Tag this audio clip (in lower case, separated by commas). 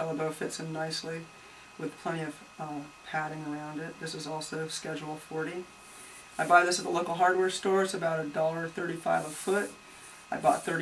speech